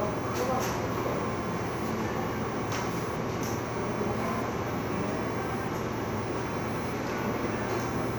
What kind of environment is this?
cafe